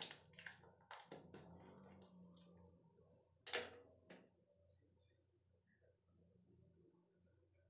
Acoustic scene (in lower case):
restroom